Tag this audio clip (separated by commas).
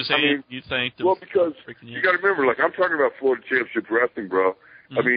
Speech